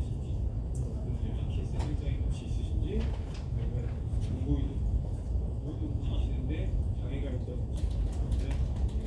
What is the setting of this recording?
crowded indoor space